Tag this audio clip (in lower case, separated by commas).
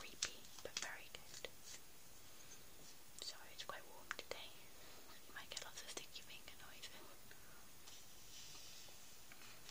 whispering, speech, people whispering